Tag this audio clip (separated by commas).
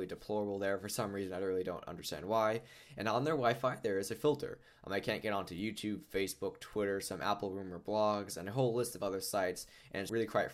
Speech